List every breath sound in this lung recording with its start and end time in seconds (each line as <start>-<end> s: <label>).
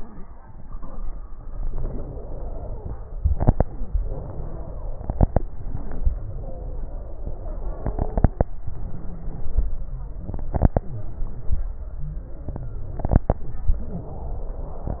1.50-3.00 s: inhalation
1.50-3.00 s: wheeze
4.00-5.21 s: inhalation
4.00-5.21 s: wheeze
6.05-7.81 s: inhalation
6.05-7.81 s: wheeze
8.44-9.65 s: inhalation
8.46-9.65 s: wheeze
10.85-13.03 s: exhalation
10.85-13.03 s: crackles
13.71-15.00 s: inhalation
13.71-15.00 s: wheeze